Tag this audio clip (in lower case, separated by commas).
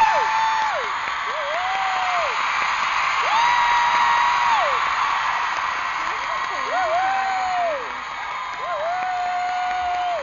speech